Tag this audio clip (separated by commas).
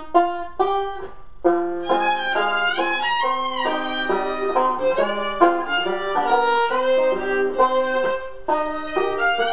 Classical music, Banjo, Musical instrument, Music, fiddle, Bowed string instrument, Bluegrass